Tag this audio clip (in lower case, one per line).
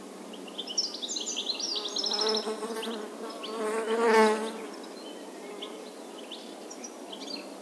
insect
wild animals
animal